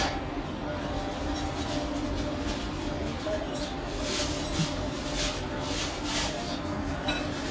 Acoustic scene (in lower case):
restaurant